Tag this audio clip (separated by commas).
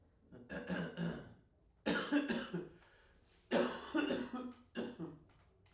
Cough, Respiratory sounds